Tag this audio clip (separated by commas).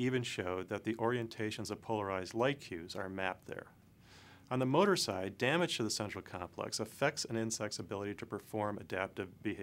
Speech